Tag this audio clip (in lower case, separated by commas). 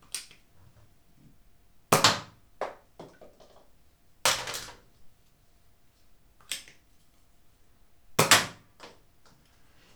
gunfire, explosion